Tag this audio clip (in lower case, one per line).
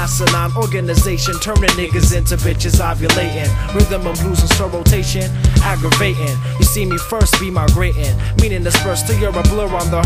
music